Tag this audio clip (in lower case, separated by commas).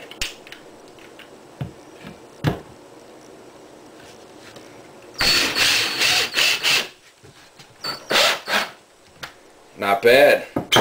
power tool, tools